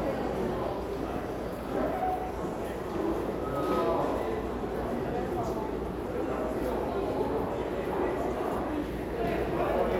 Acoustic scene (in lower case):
subway station